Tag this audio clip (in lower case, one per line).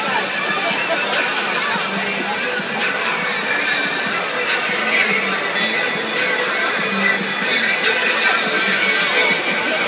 hubbub
music
inside a large room or hall